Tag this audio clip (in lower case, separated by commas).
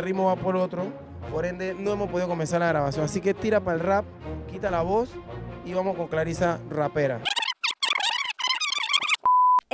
speech, music